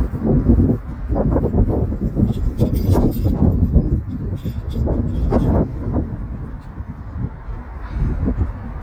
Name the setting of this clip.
residential area